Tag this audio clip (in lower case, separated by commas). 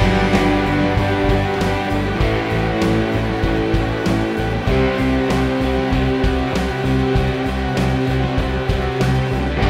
music